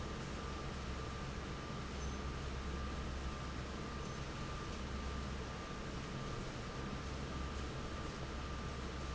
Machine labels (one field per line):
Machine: fan